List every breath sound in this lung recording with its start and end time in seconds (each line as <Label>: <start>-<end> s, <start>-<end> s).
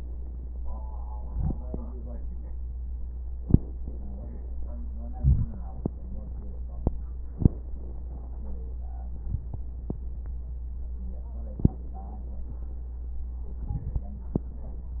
Inhalation: 1.26-1.53 s, 5.16-5.48 s, 13.73-14.05 s
Crackles: 5.16-5.48 s